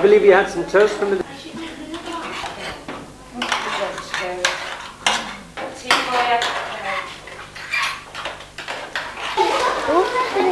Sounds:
dishes, pots and pans, cutlery

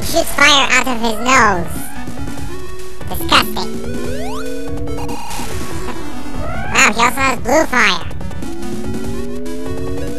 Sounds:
music, speech

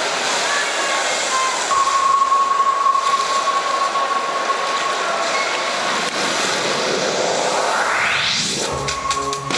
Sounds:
inside a large room or hall, speech, music

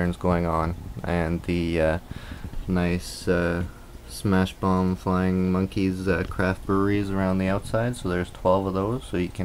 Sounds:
speech

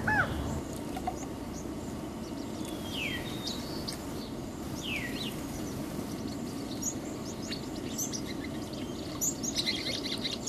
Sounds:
bird squawking

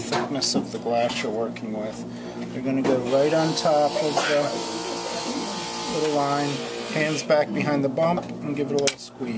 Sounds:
glass, speech

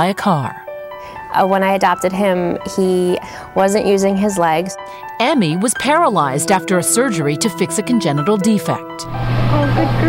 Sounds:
speech, music

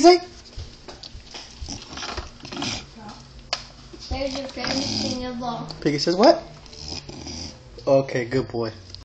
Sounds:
speech

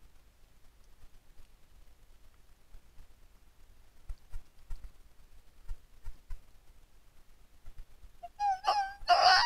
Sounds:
fox barking

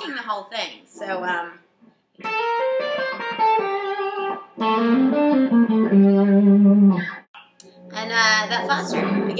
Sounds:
speech, musical instrument, guitar, music

